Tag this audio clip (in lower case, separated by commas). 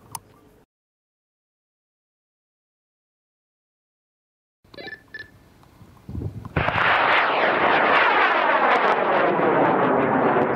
outside, rural or natural, vehicle